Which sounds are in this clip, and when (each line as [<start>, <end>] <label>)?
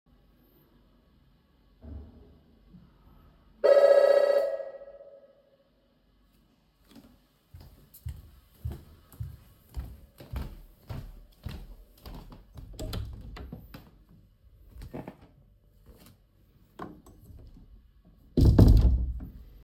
[3.60, 5.15] bell ringing
[6.95, 12.77] footsteps
[12.54, 15.11] door
[14.65, 16.18] footsteps
[18.29, 19.63] door